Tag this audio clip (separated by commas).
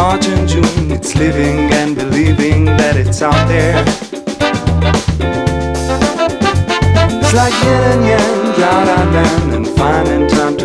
Music, Funk